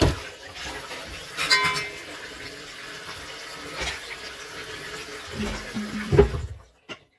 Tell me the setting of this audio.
kitchen